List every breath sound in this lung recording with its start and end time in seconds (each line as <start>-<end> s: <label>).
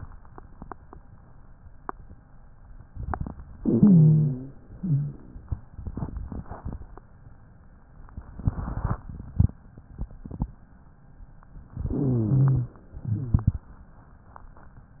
3.55-4.55 s: inhalation
3.55-4.55 s: rhonchi
4.74-5.29 s: exhalation
4.74-5.29 s: rhonchi
11.84-12.79 s: inhalation
11.84-12.79 s: rhonchi
13.00-13.57 s: exhalation
13.00-13.57 s: rhonchi